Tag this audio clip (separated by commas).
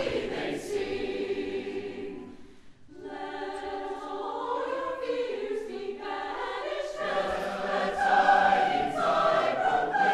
Christmas music